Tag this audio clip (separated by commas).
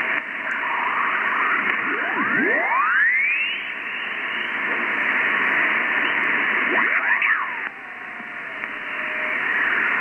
Radio